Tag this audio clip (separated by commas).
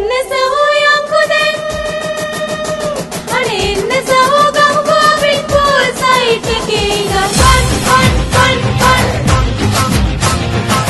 Music, Music of Asia